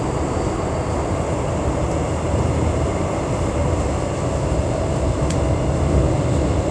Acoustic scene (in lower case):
subway train